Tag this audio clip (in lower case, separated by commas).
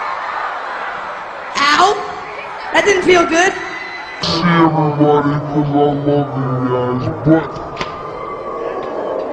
speech